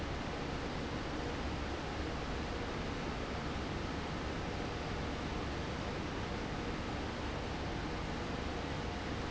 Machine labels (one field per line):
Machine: fan